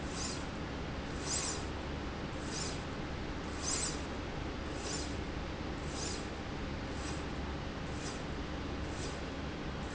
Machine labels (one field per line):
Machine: slide rail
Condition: normal